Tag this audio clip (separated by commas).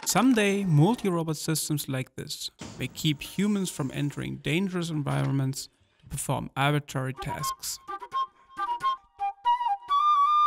Flute